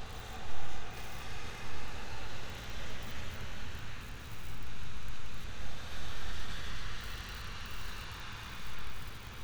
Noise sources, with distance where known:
engine of unclear size

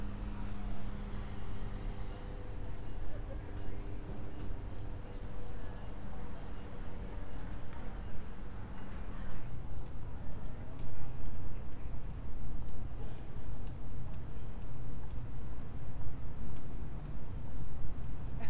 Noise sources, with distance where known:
background noise

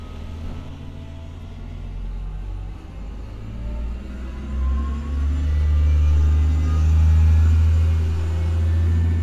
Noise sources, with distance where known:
engine of unclear size

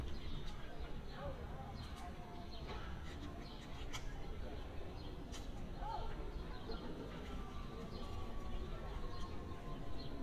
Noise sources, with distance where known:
person or small group talking

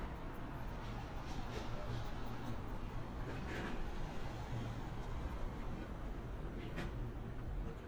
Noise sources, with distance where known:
small-sounding engine, far

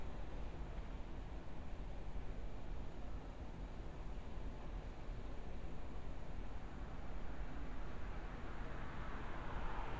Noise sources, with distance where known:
background noise

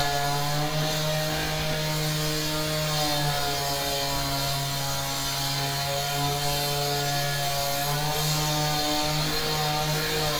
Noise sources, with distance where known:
small or medium rotating saw

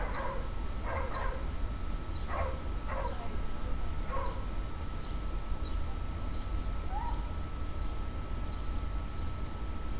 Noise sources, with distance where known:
dog barking or whining, far

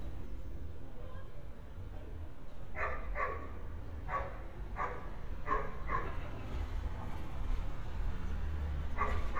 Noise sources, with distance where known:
person or small group talking, far; dog barking or whining, near

